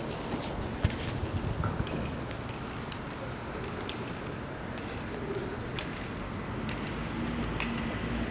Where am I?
on a street